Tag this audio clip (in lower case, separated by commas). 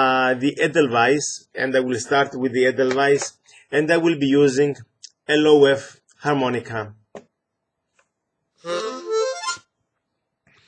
music, speech